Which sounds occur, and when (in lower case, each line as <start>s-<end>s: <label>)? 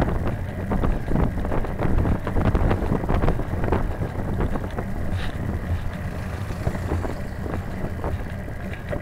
0.0s-9.0s: traffic noise
0.0s-9.0s: wind noise (microphone)